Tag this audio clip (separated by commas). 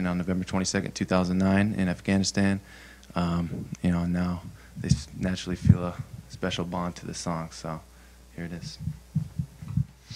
Speech